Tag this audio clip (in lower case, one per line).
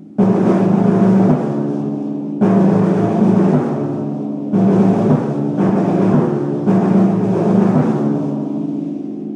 playing timpani